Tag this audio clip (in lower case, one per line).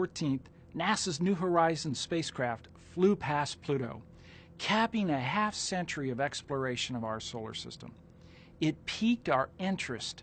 speech